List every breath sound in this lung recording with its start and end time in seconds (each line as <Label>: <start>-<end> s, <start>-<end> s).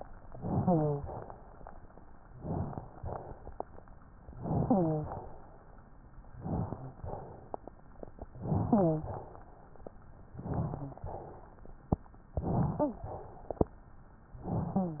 Inhalation: 0.34-1.09 s, 2.35-2.87 s, 4.36-5.24 s, 6.41-6.99 s, 8.45-9.06 s, 10.38-11.00 s, 12.35-13.05 s, 14.44-15.00 s
Exhalation: 2.87-3.51 s, 6.99-7.59 s, 9.06-9.50 s, 11.00-11.46 s, 13.05-13.57 s
Wheeze: 0.54-1.02 s, 4.62-5.10 s, 8.63-9.05 s, 12.73-13.05 s, 14.72-15.00 s